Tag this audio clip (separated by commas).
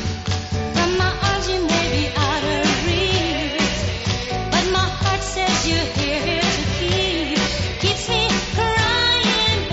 Singing